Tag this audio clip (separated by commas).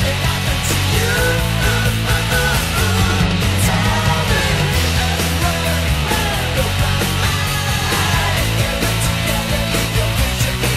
Music